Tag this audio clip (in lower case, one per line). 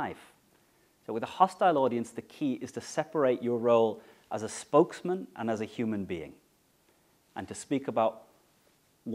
speech
male speech
monologue